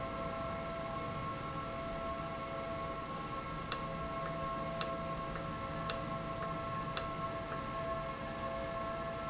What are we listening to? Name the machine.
valve